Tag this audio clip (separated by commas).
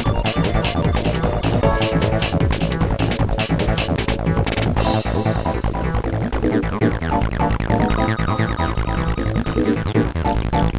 Music, Electronic music, Techno